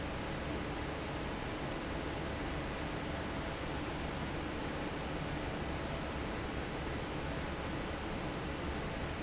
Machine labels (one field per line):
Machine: fan